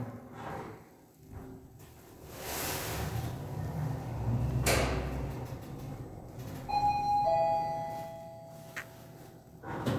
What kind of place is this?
elevator